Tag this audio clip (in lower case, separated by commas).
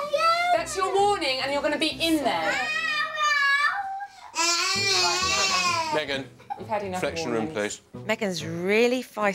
children shouting